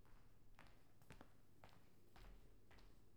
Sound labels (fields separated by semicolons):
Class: footsteps; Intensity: low